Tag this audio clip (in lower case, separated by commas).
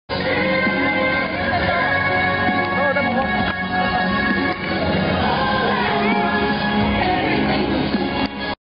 music, speech